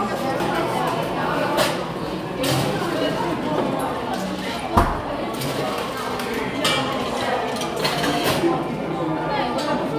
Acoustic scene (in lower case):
cafe